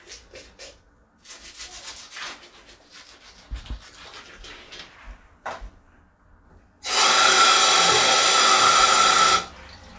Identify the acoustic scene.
restroom